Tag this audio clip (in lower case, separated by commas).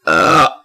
burping, human voice